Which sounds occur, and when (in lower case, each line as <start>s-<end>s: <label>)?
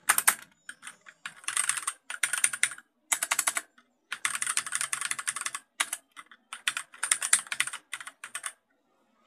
0.0s-0.5s: computer keyboard
0.5s-1.4s: music
0.7s-1.9s: computer keyboard
2.1s-2.9s: computer keyboard
3.1s-3.6s: computer keyboard
3.7s-3.9s: computer keyboard
4.1s-5.6s: computer keyboard
5.8s-6.0s: computer keyboard
6.1s-6.4s: computer keyboard
6.5s-8.5s: computer keyboard
8.5s-9.2s: background noise